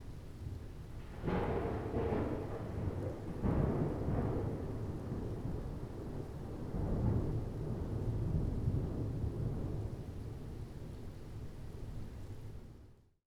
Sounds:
Thunder, Rain, Thunderstorm, Water

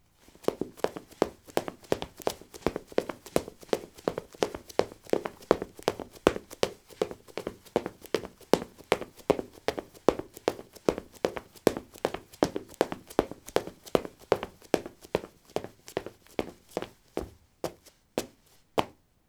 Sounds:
Run

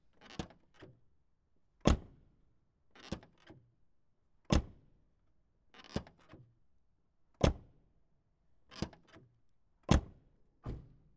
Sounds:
Vehicle, Motor vehicle (road)

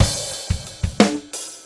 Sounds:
Percussion, Drum kit, Music, Musical instrument

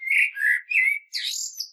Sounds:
Bird, Wild animals, Animal

